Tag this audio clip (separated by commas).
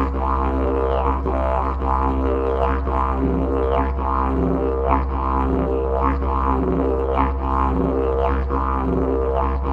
Didgeridoo